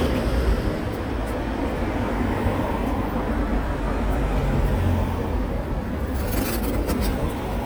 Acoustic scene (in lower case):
street